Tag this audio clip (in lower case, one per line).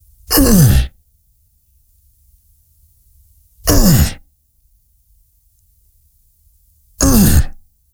human voice